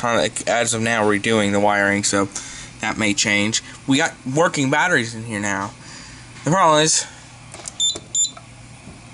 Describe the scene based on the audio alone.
A person speaks, some digital beeps